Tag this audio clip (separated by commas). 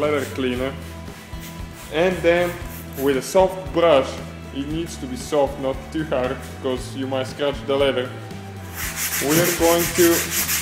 Speech, Music